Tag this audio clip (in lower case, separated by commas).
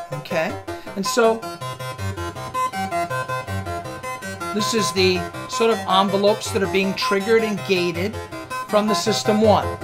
speech, music